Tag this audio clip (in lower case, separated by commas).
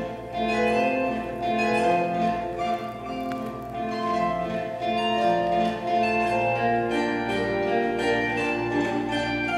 playing zither